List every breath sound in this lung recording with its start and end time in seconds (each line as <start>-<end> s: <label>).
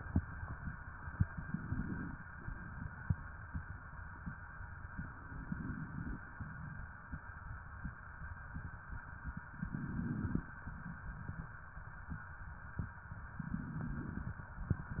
1.25-2.24 s: inhalation
5.22-6.21 s: inhalation
9.51-10.49 s: inhalation
13.41-14.40 s: inhalation